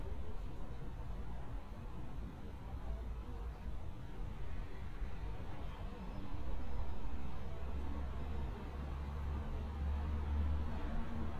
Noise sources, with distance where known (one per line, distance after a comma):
engine of unclear size, far